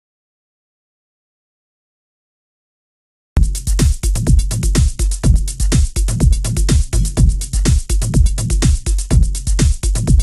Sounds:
music

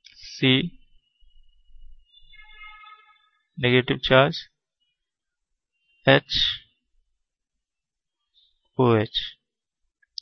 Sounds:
speech

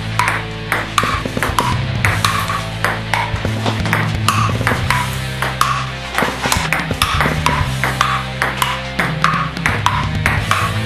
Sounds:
playing table tennis

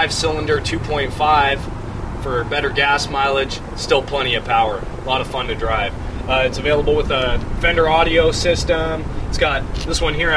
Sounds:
speech

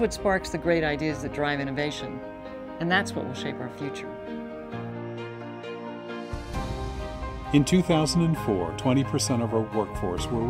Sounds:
speech
music

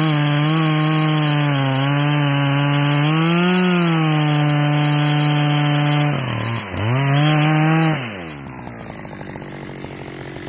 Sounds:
chainsaw

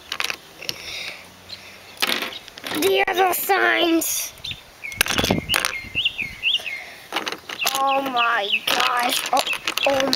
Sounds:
bird
speech

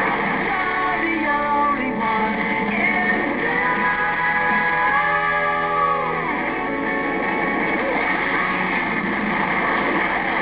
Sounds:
waves
ocean

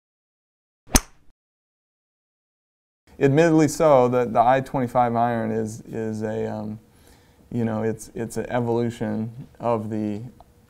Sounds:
speech

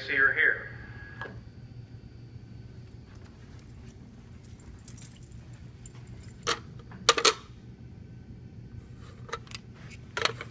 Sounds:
speech

